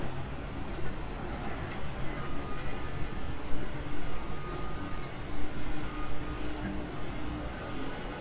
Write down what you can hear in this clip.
engine of unclear size